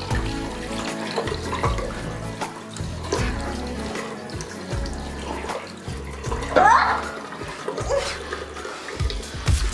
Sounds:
sink (filling or washing), music, inside a small room

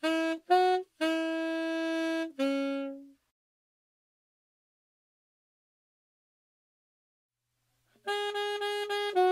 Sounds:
playing saxophone

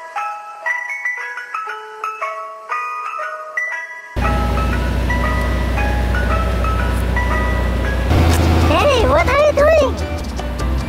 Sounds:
ice cream van

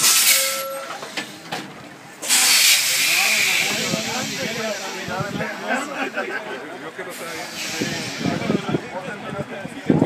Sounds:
vehicle, speech

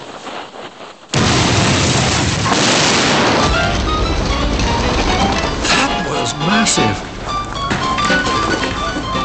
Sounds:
explosion

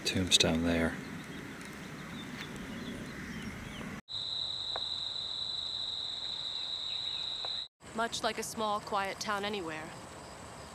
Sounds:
environmental noise

